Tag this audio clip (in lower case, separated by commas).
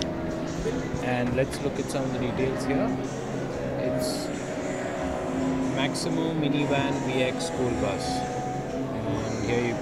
music, speech